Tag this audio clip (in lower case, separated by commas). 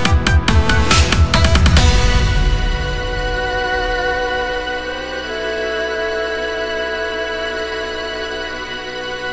rock music, music, trance music, heavy metal